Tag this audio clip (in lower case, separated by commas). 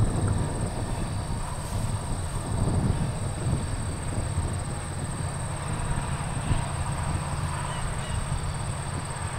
vehicle, railroad car, train, outside, rural or natural